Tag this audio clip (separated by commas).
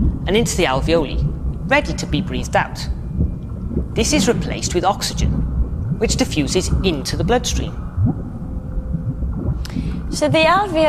Speech